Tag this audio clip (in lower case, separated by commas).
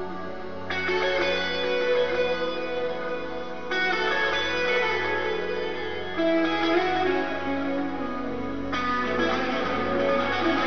music, musical instrument